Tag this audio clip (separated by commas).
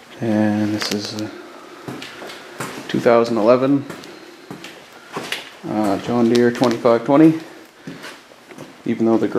Speech